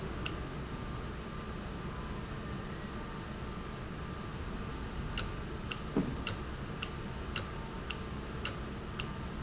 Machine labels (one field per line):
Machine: valve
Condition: normal